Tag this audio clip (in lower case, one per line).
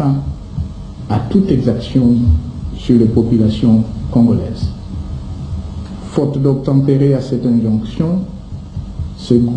speech